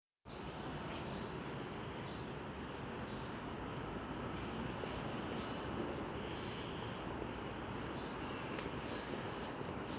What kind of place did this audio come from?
residential area